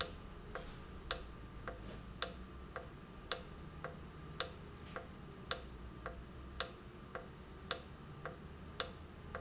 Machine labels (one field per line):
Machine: valve